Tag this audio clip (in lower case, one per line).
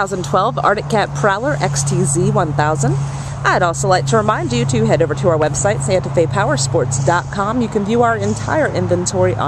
speech